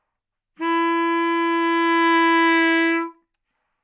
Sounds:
woodwind instrument, Music, Musical instrument

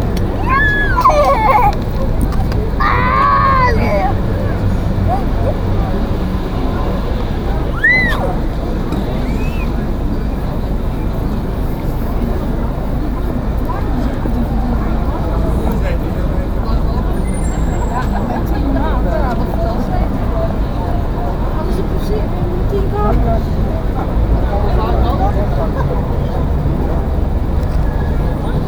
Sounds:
Chatter, Human group actions

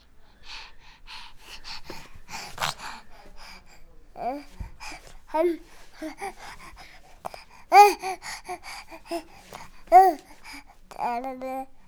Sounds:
Speech, Human voice

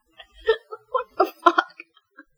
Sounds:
Human voice, Laughter

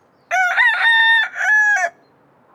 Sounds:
Animal, Fowl, livestock, Chicken

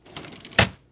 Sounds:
Drawer open or close, Wood, home sounds

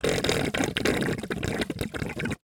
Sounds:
Water, Gurgling

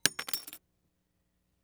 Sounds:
Shatter, Glass

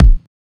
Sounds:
Bass drum, Musical instrument, Drum, Percussion, Music

